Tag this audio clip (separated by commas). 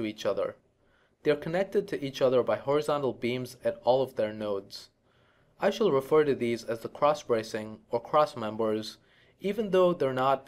Speech